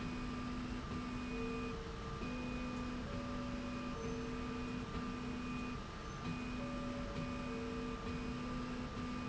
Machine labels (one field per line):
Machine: slide rail